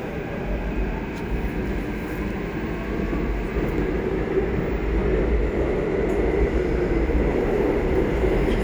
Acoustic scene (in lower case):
subway train